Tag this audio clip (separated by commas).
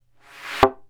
Thump